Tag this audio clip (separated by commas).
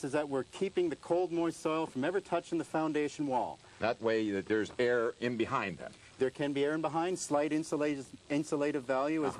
Speech, outside, urban or man-made